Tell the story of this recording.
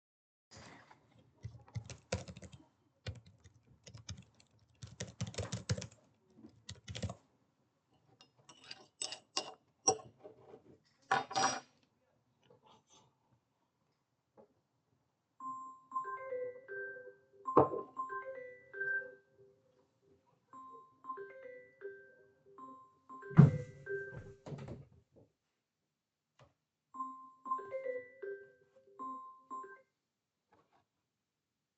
I was typing on my keybord then i stirred my tea. i recieved a call then i closed the window